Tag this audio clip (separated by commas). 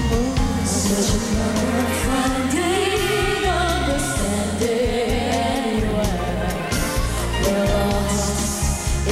Music